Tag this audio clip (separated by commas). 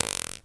Fart